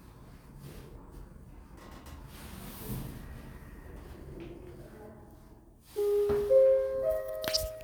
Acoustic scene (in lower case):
elevator